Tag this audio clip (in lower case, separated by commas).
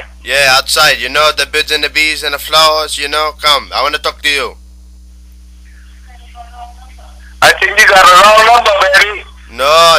speech